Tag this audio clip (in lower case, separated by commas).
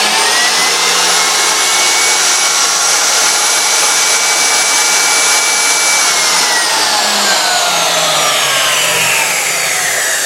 tools, sawing